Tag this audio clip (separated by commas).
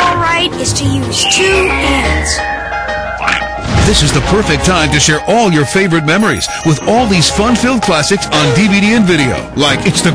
Speech, Music